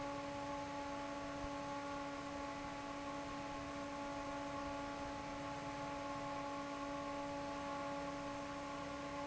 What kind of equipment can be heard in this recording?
fan